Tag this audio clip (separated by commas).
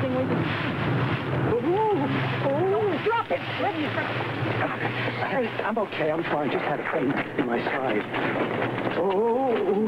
Speech